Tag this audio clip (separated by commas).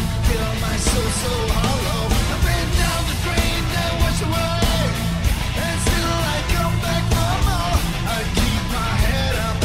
Music